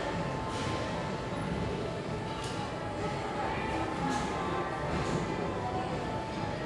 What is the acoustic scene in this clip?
cafe